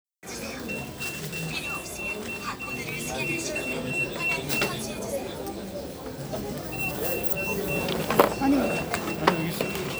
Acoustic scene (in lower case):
crowded indoor space